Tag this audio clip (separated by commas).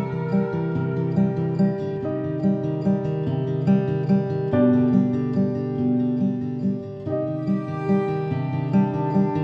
Music